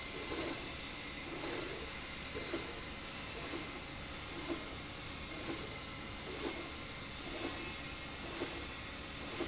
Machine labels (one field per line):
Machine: slide rail